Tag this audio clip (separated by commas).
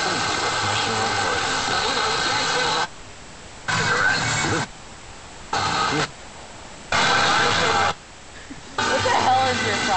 Radio, Speech